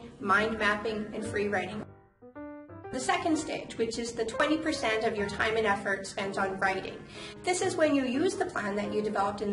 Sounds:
speech
music

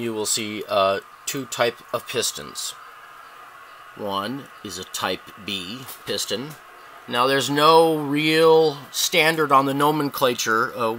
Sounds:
speech

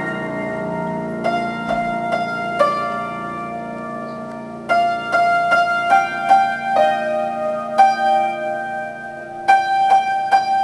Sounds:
piano
keyboard (musical)

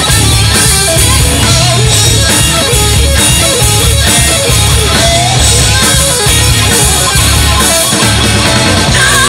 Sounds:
music
musical instrument

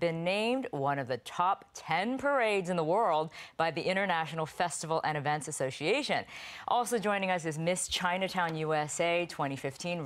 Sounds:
speech

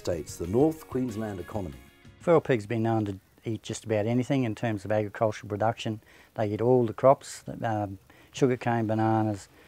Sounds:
speech
music

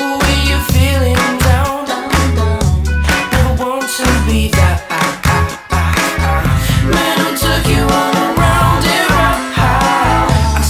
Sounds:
music

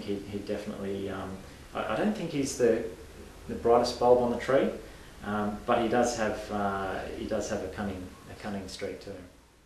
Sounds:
speech

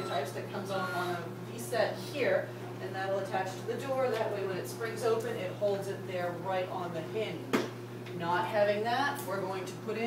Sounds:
speech
door

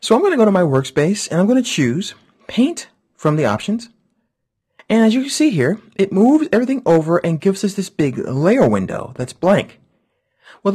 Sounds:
speech

